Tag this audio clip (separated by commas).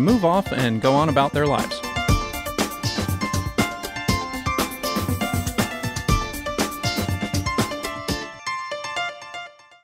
Music